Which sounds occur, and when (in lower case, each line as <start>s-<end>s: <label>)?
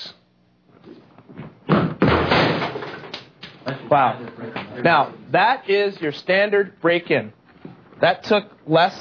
0.0s-0.1s: human sounds
0.0s-0.2s: walk
0.0s-9.0s: mechanisms
0.7s-1.0s: walk
1.1s-3.2s: walk
3.3s-3.5s: walk
3.6s-3.8s: walk
3.6s-4.3s: male speech
3.7s-9.0s: conversation
4.8s-5.1s: male speech
5.3s-7.3s: male speech
8.0s-8.4s: male speech
8.6s-9.0s: male speech